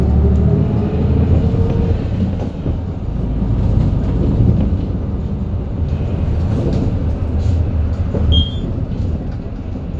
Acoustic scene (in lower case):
bus